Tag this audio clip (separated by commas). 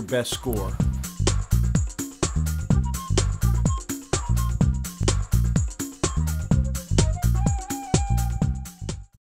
Music, Speech